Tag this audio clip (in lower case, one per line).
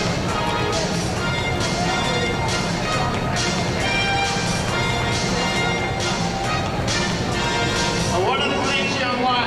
speech
music